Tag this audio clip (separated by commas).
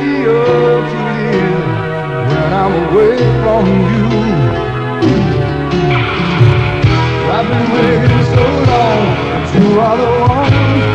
Music